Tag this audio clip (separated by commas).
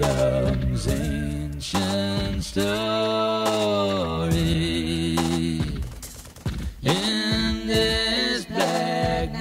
Music